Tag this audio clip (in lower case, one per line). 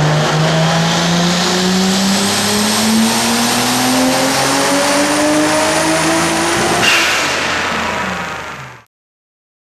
car
accelerating
vehicle